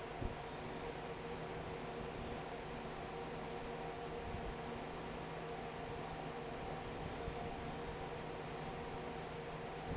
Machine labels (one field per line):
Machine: fan